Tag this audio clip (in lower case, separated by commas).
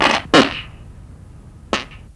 fart